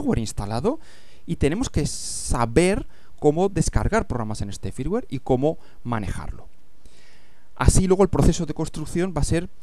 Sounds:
speech

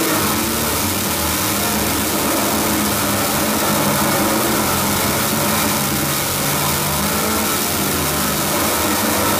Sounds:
car

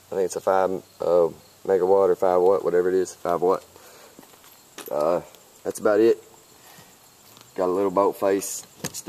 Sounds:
speech

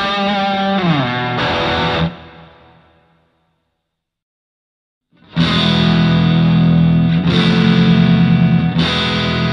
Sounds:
musical instrument
effects unit
electric guitar
music
rock music
guitar
distortion
plucked string instrument
heavy metal

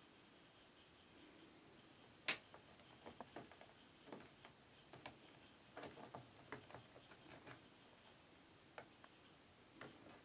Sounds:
mice

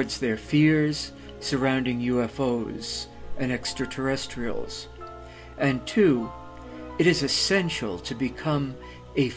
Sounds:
speech
music

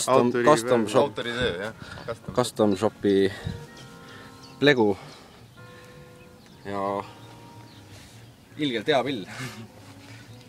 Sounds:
speech
musical instrument
music
guitar

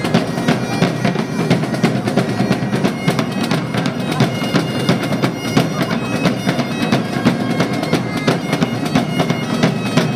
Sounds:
music

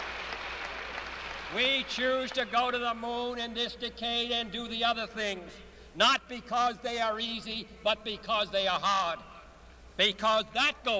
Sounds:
man speaking
speech
monologue

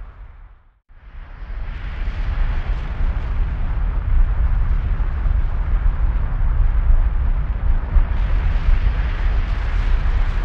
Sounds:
volcano explosion

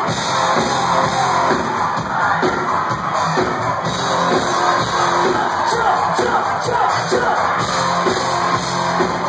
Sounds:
music

